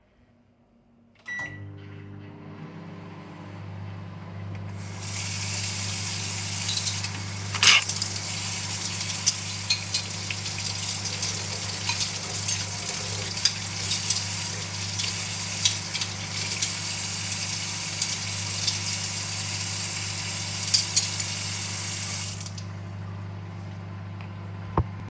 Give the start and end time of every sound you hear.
[1.20, 25.11] microwave
[4.95, 22.41] running water
[6.50, 21.31] cutlery and dishes

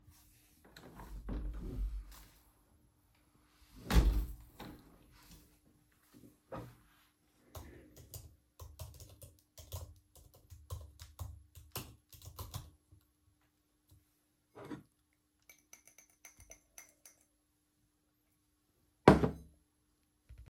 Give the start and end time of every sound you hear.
[0.00, 4.56] window
[7.51, 12.61] keyboard typing

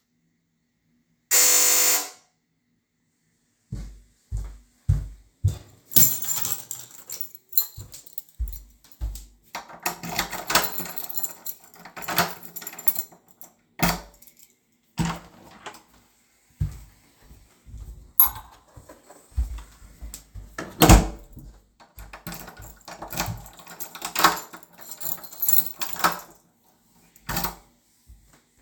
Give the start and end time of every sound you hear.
[1.26, 2.17] bell ringing
[1.29, 2.19] phone ringing
[3.66, 5.83] footsteps
[5.80, 9.31] keys
[8.33, 10.27] footsteps
[9.71, 15.92] door
[10.42, 14.48] keys
[16.48, 20.46] footsteps
[17.74, 17.99] keys
[18.07, 18.60] keys
[20.69, 21.32] door
[21.27, 23.90] footsteps
[22.13, 26.37] door
[22.18, 26.32] keys
[27.18, 27.68] door

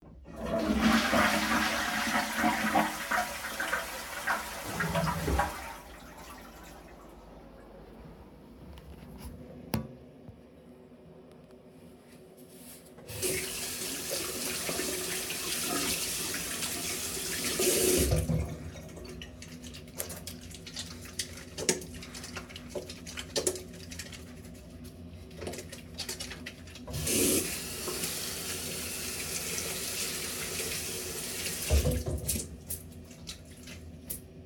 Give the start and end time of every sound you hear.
[0.00, 34.45] toilet flushing
[12.87, 20.14] running water
[26.72, 33.53] running water

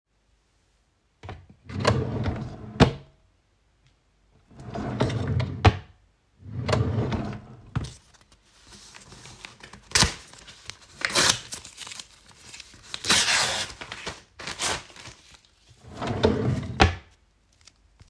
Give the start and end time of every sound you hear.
[1.62, 3.07] wardrobe or drawer
[4.55, 5.94] wardrobe or drawer
[6.39, 8.05] wardrobe or drawer
[15.83, 17.08] wardrobe or drawer

